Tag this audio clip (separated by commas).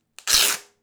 Domestic sounds